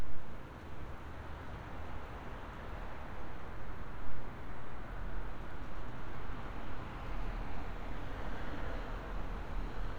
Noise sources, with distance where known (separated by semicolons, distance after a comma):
background noise